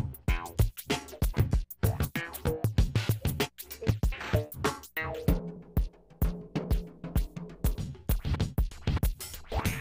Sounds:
music

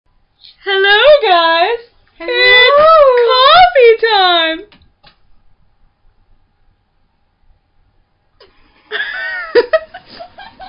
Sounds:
inside a small room
speech

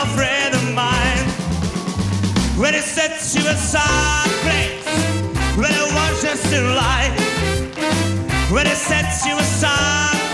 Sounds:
music

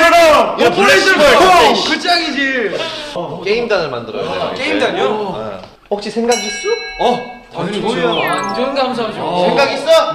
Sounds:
speech

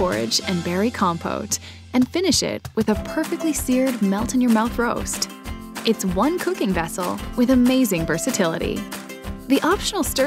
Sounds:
music
speech

